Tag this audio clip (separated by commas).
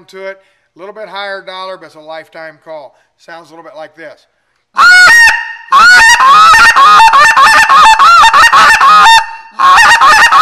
Speech